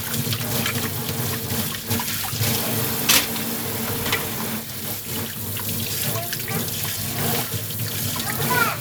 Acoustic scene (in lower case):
kitchen